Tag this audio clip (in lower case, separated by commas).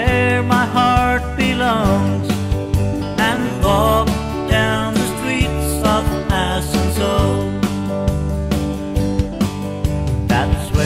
country, music